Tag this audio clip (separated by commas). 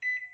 Microwave oven, Domestic sounds